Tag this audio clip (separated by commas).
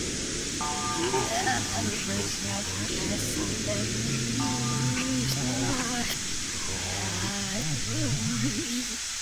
Music, Speech